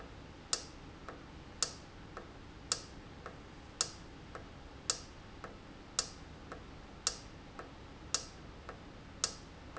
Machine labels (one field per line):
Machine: valve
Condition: normal